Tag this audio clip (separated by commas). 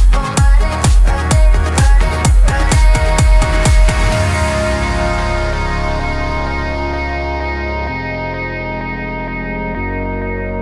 Music